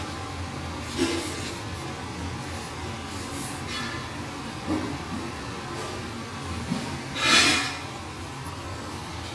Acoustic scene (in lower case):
restaurant